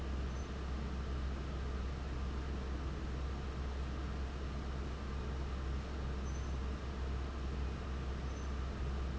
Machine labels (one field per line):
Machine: fan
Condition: abnormal